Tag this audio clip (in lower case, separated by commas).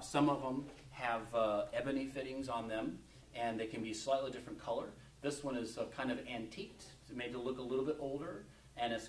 speech